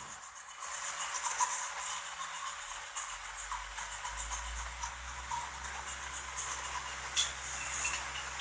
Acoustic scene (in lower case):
restroom